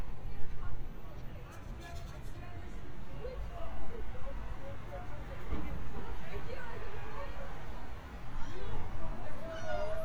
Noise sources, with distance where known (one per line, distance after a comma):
person or small group talking